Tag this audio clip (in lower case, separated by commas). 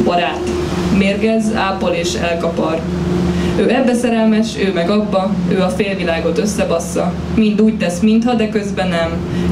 speech